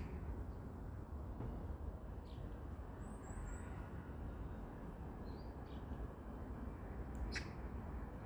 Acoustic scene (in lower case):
residential area